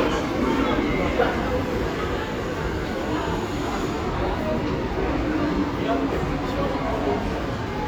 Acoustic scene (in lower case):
subway station